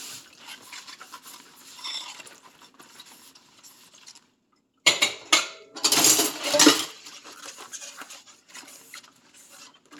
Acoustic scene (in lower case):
kitchen